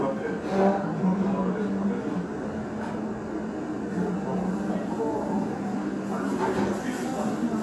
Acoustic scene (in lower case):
restaurant